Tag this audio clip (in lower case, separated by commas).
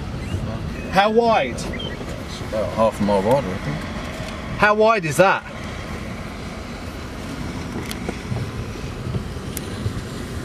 car, speech, outside, rural or natural